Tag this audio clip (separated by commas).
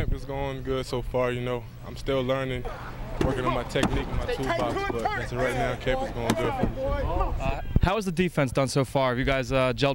Speech